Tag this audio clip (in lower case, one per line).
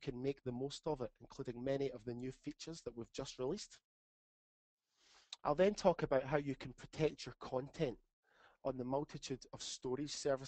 speech